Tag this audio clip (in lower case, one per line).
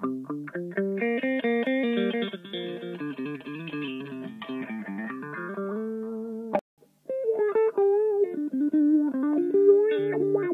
effects unit
music
guitar